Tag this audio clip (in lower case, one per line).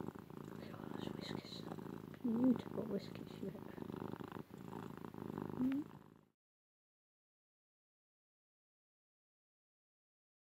cat purring